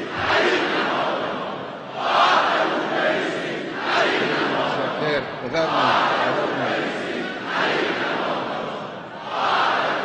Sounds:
Male speech, Speech, Crowd

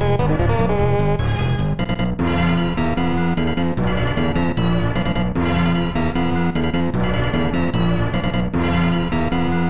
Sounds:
Music

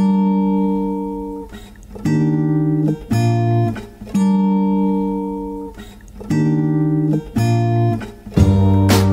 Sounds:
Music

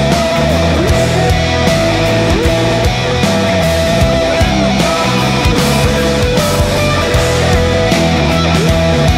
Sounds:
Grunge

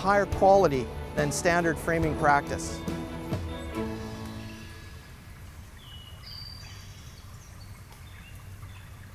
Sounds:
Speech, Music, outside, rural or natural

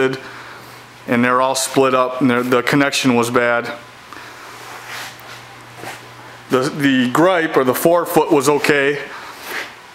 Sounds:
Speech

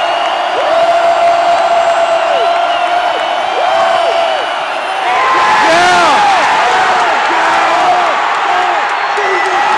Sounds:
Speech

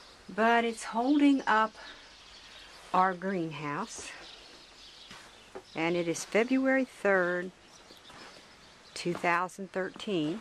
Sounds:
Speech

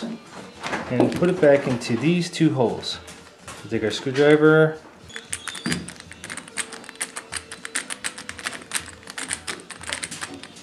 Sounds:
Speech

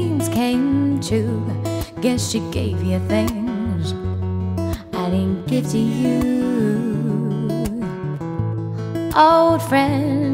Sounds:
Music

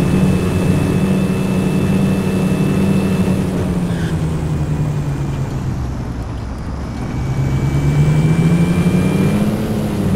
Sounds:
Vehicle

